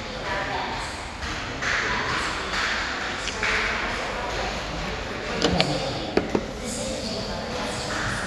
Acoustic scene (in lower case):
crowded indoor space